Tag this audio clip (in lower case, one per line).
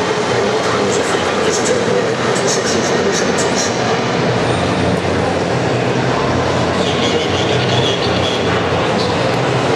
speech
radio